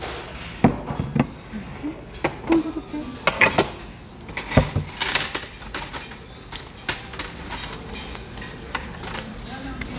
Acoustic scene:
restaurant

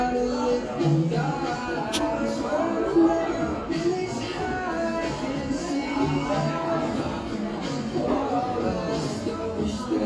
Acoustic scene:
cafe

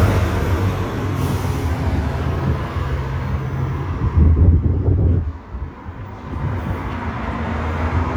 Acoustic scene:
street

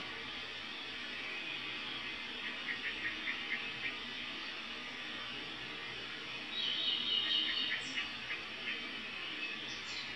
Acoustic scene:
park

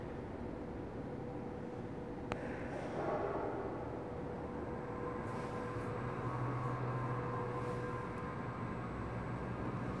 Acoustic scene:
elevator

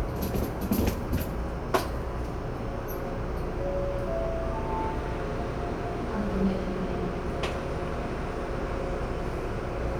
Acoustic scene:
subway train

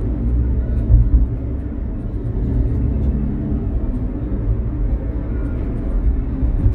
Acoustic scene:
car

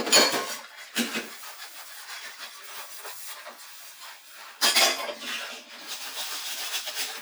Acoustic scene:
kitchen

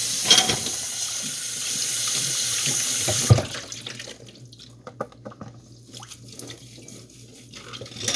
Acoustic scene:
kitchen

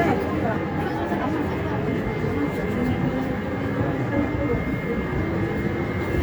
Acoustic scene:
subway train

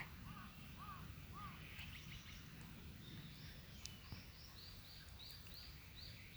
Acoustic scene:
park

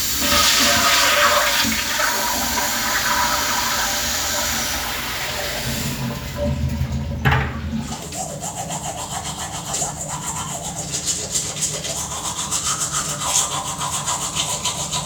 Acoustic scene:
restroom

